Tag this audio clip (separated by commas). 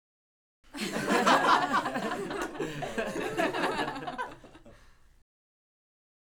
Human voice, Laughter